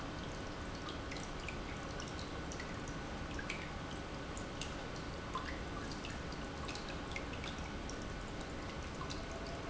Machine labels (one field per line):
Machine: pump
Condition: normal